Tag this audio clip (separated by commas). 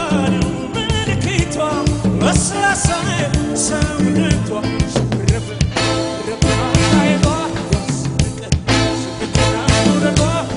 Music, Pop music